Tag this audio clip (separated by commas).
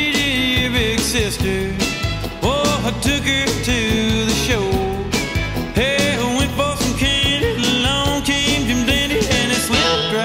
Music